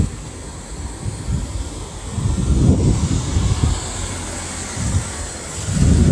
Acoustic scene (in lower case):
residential area